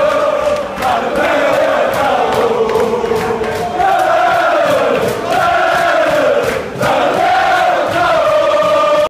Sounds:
Choir, Male singing

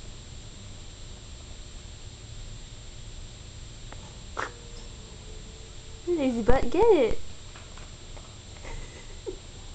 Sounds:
Speech

